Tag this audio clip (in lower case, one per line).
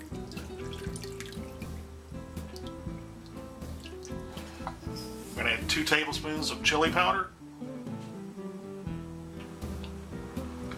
water
frying (food)